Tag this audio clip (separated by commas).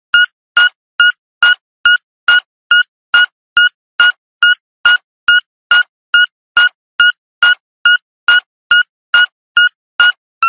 Music